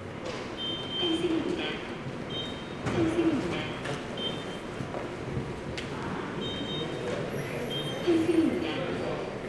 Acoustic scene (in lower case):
subway station